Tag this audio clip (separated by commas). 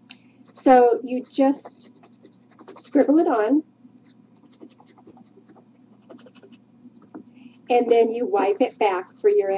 inside a small room, Speech